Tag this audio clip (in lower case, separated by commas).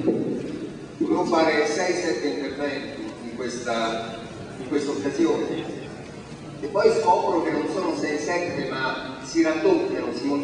male speech, monologue, speech